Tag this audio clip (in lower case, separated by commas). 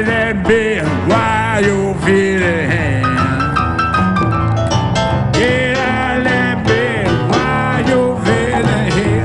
roll, music, singing, country